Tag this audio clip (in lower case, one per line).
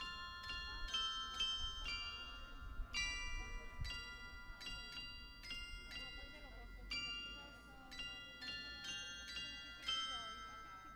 music